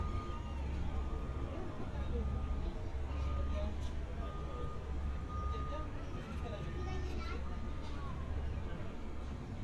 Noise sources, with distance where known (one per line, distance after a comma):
reverse beeper, far
person or small group talking, far